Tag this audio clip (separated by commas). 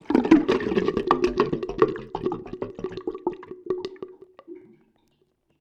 Sink (filling or washing), Gurgling, Water, home sounds